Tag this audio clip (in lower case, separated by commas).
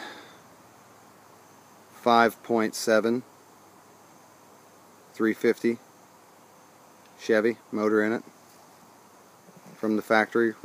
speech